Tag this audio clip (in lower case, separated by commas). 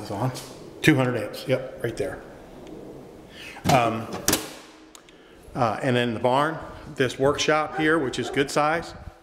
inside a large room or hall, speech